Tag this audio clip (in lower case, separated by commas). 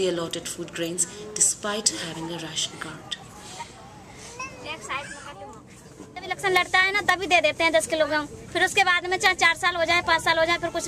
outside, rural or natural, speech